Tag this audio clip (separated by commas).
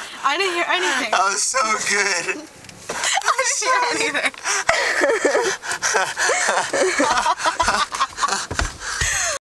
Speech